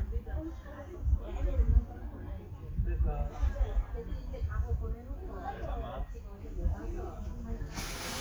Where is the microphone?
in a park